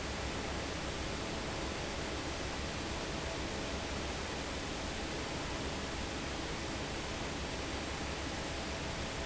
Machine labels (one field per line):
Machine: fan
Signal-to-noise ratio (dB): -6 dB